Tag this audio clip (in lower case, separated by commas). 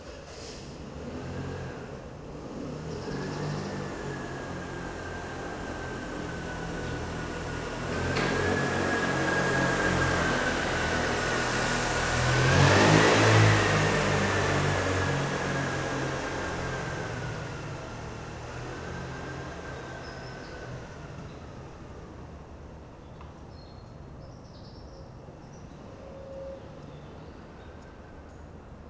motorcycle, vehicle, motor vehicle (road)